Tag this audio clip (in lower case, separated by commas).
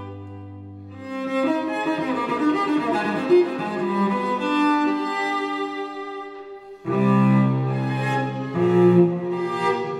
playing cello